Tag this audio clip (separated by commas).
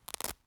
Domestic sounds